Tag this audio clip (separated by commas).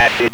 Human voice, Speech